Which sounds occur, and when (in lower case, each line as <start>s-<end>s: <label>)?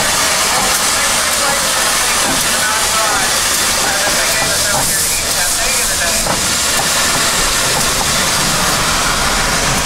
0.0s-9.8s: engine
0.0s-9.8s: hiss
3.7s-6.2s: man speaking